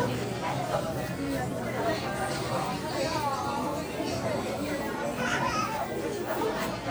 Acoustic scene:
crowded indoor space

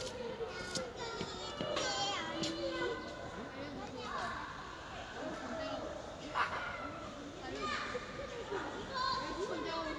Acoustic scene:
park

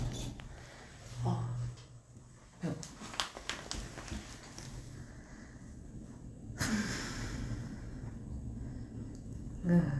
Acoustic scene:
elevator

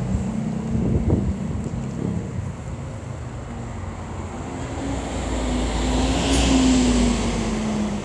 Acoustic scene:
street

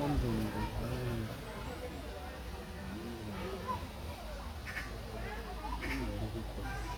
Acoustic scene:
park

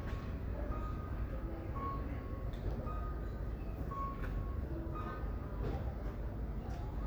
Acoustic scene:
residential area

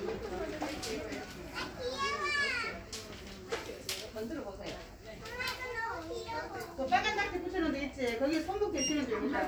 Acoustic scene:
crowded indoor space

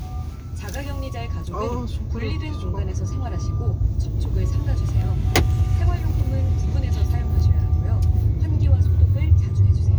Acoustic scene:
car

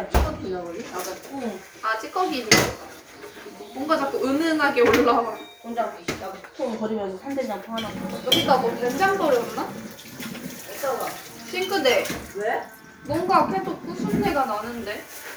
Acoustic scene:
kitchen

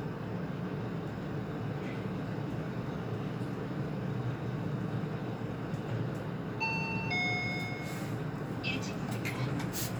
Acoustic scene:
elevator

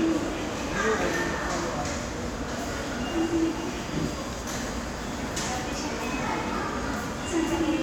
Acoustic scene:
subway station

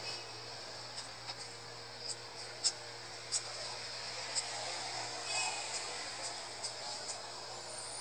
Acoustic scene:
street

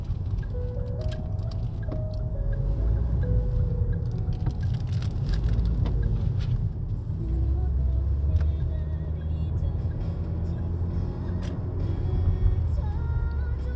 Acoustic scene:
car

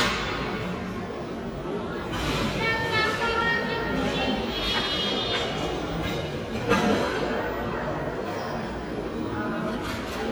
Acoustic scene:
cafe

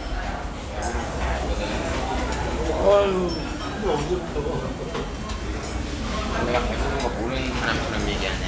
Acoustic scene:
restaurant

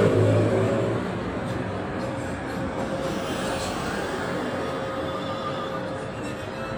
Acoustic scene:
street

